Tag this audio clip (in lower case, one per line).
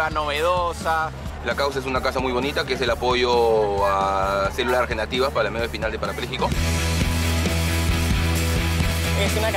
speech
music
outside, urban or man-made